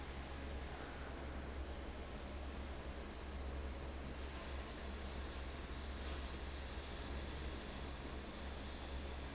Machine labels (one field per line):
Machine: fan